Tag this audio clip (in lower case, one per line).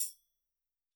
percussion
musical instrument
music
tambourine